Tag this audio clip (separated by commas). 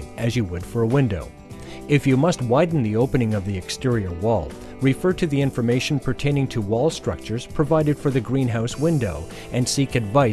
Speech, Music